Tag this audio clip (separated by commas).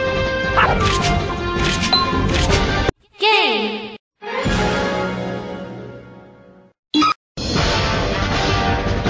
Speech, Music